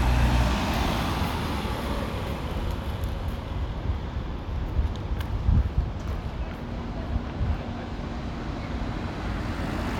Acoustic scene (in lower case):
residential area